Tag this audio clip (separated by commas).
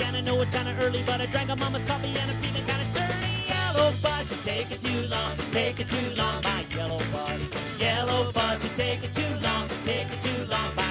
Music